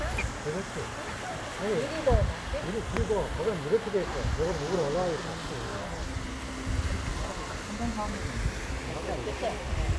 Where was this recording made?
in a park